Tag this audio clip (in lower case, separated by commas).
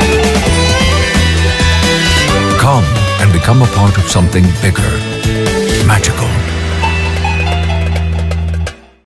music, speech